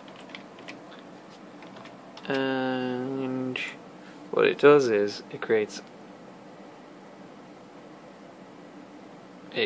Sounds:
speech

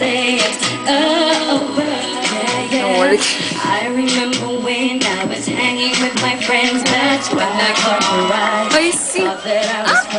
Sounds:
speech, female singing, music

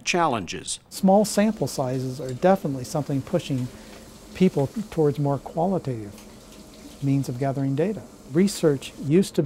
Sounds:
speech

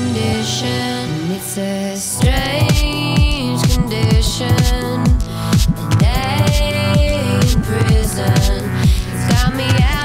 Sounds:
dubstep, music

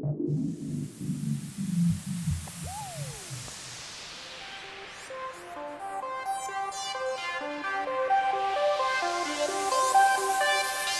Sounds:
music

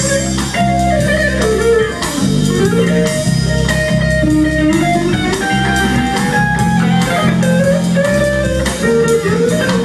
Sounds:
music, blues

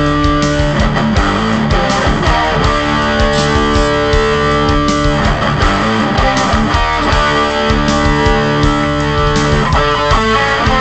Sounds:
music, musical instrument, bass guitar, electric guitar, guitar

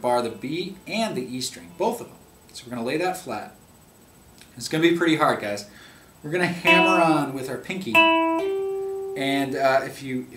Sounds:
plucked string instrument, guitar, speech, electric guitar, music, musical instrument

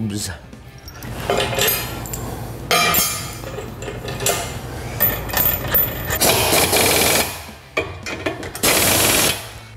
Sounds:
speech

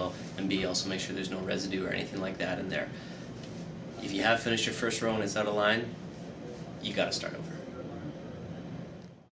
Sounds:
speech

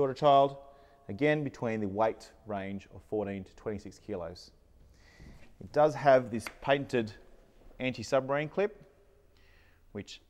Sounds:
speech

